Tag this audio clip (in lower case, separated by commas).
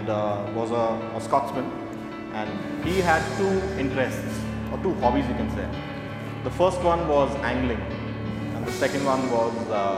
speech, music